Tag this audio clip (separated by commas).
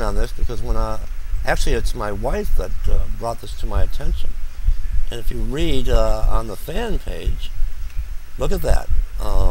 Speech